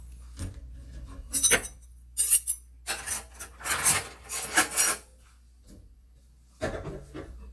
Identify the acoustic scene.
kitchen